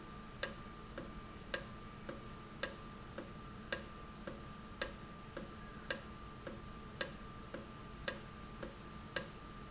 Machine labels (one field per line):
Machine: valve